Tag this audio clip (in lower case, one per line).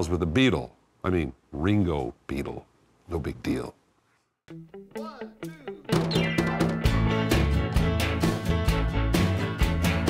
speech
music